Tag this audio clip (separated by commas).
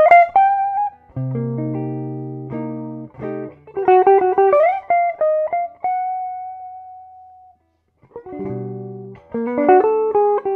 Music, Musical instrument, Plucked string instrument, Guitar